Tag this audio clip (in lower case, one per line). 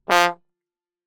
musical instrument
music
brass instrument